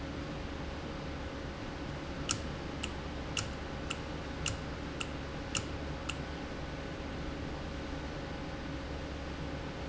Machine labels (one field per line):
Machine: valve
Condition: normal